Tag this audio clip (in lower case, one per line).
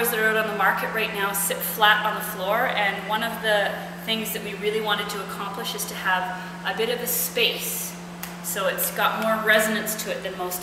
speech